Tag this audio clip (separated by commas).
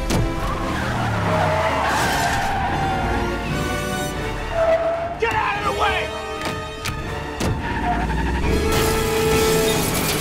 Speech, Car passing by, Music, Car, Vehicle, Motor vehicle (road)